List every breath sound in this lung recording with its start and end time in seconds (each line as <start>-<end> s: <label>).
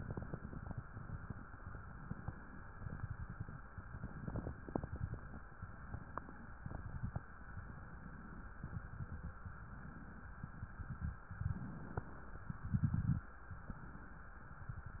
5.46-6.52 s: inhalation
6.52-7.23 s: exhalation
6.52-7.23 s: crackles
7.30-8.51 s: inhalation
8.51-9.40 s: exhalation
8.51-9.40 s: crackles
9.41-10.39 s: inhalation
10.38-11.26 s: exhalation
10.38-11.26 s: crackles
11.26-12.46 s: inhalation
12.46-13.31 s: exhalation
12.46-13.31 s: crackles
13.47-14.41 s: inhalation
14.44-15.00 s: exhalation
14.44-15.00 s: crackles